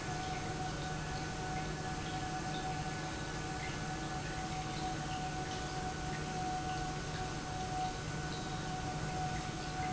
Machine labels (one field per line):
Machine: pump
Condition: normal